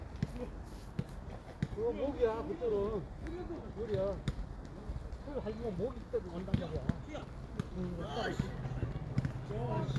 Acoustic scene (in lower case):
park